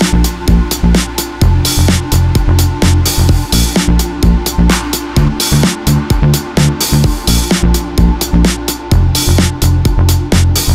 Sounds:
Distortion, Music

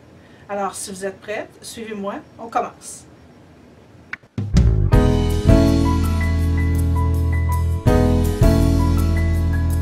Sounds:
Speech, Music

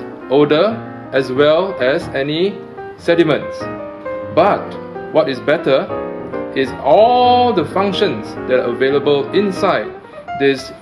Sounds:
Music, Speech

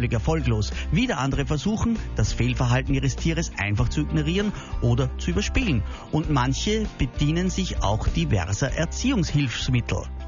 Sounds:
Music, Speech

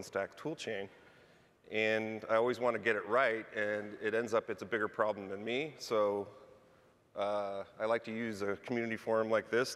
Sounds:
Speech

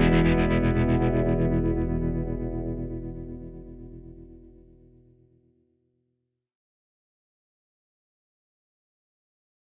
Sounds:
Music

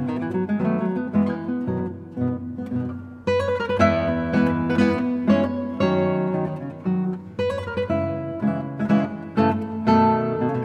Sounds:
Music, Musical instrument, Strum, Plucked string instrument, Guitar, Acoustic guitar

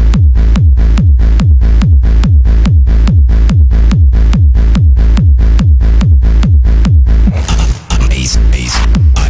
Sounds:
Music

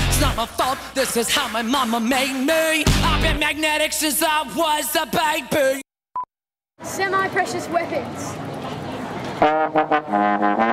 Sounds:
outside, urban or man-made, Music, Speech

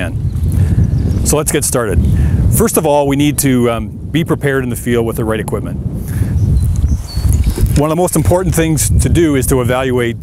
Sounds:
Speech

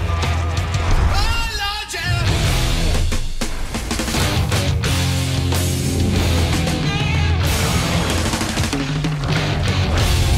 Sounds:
Music

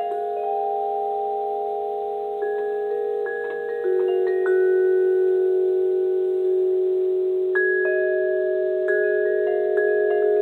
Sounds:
playing vibraphone

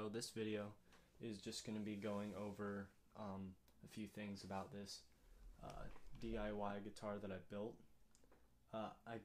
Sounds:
Speech

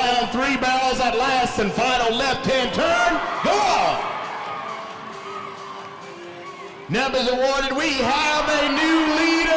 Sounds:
Speech, Music

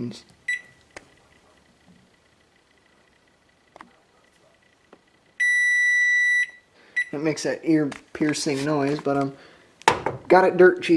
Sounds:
Speech, inside a small room

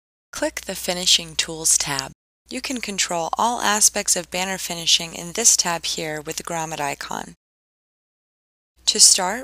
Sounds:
Speech

